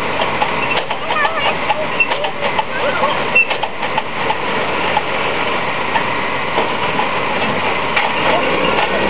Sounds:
speech, truck, vehicle

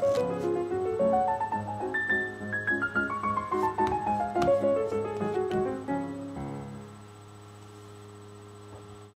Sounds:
music

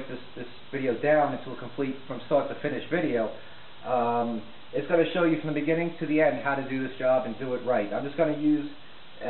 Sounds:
speech

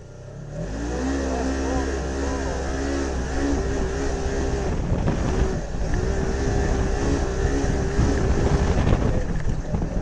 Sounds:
speech

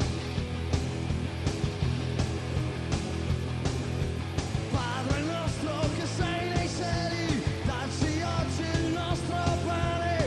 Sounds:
music

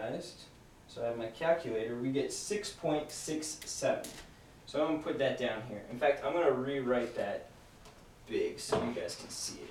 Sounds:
inside a small room, speech

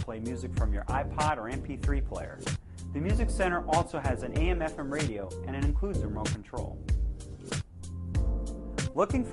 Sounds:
music, speech

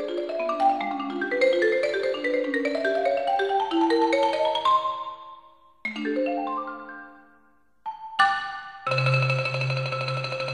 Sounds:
musical instrument, vibraphone, xylophone, music

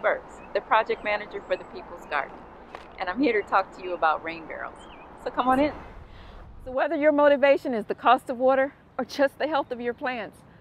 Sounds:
speech

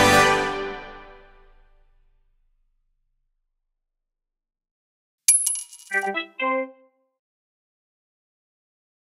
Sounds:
sound effect, music

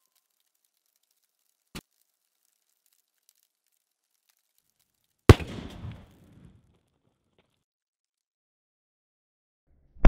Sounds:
lighting firecrackers

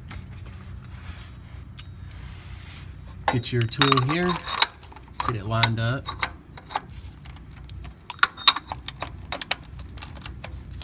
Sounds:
inside a small room, speech

